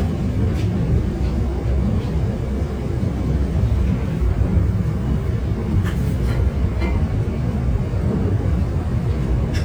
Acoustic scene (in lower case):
subway train